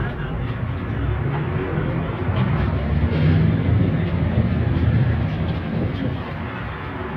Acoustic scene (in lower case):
bus